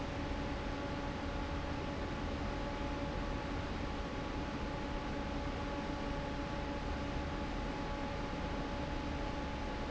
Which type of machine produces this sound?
fan